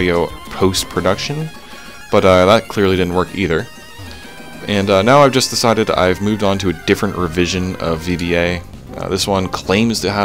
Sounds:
music
speech

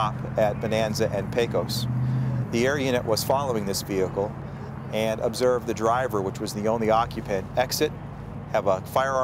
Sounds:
speech
car
vehicle

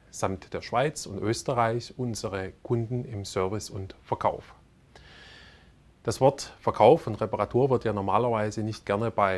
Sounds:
speech

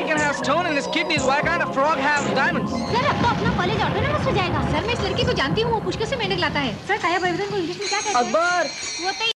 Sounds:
music
speech

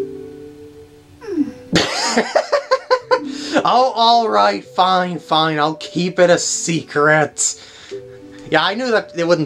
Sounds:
music
speech

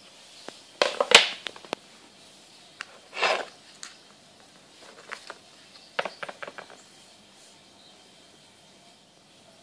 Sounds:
inside a small room

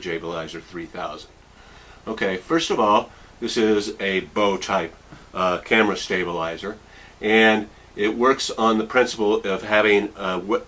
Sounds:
speech

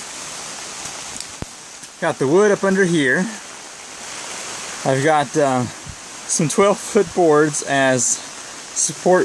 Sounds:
speech
rain on surface

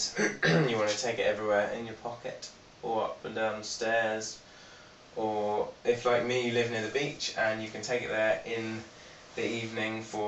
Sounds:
speech

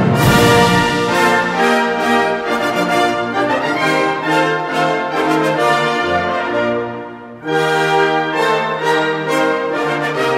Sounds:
music

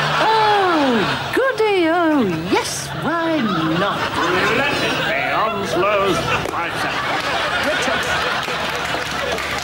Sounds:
speech

